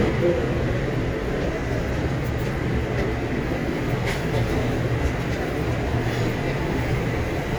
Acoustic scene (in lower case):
subway train